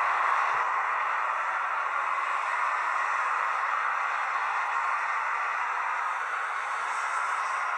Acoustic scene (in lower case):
street